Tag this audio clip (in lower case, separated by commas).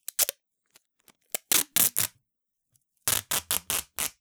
home sounds, packing tape